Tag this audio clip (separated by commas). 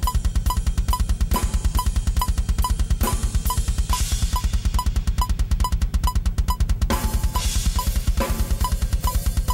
Drum roll, Snare drum, Bass drum, Drum, Percussion, Rimshot, Drum kit